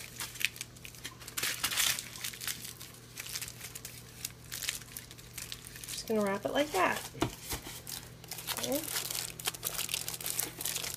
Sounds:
inside a small room, Speech

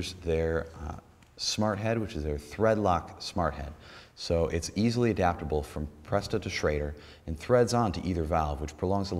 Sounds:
Speech

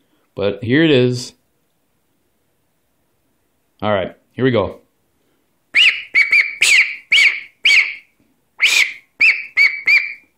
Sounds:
Speech, Quack

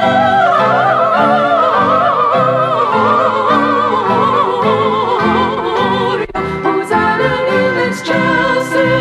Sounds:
Christmas music, Music

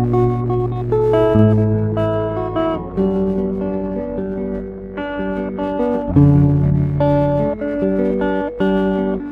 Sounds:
Music, Musical instrument, Guitar, Strum, Acoustic guitar, Plucked string instrument

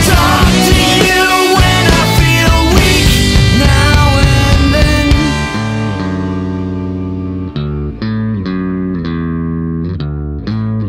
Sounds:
Music, Bass guitar

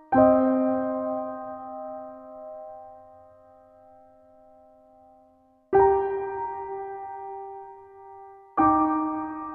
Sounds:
Music

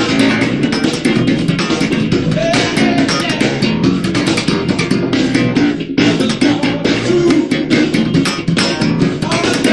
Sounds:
Music

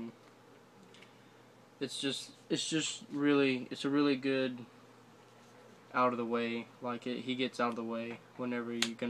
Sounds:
Speech

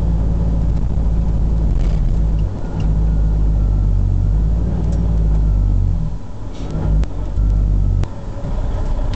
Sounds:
Motor vehicle (road), Car, Vehicle

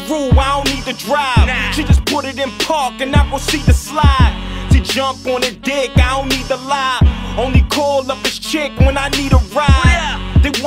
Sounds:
Music

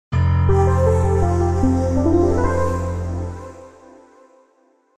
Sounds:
Music, Television

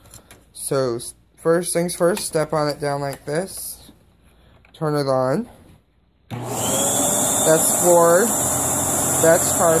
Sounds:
Vacuum cleaner

